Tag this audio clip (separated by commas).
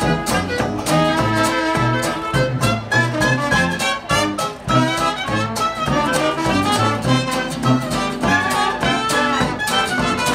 Music